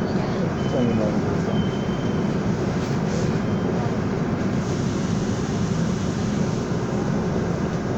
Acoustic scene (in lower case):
subway train